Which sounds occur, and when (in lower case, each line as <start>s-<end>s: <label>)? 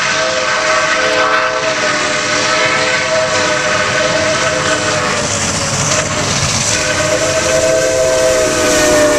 0.0s-9.1s: train
5.1s-9.1s: clickety-clack
6.9s-9.1s: steam whistle